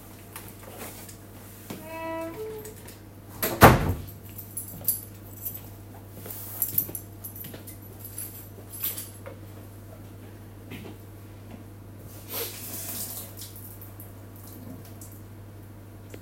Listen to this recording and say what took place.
The microwave is running. I opened and closed the door while carrying my keychain in my hands. I walked over to the faucet and turned the tap on briefly.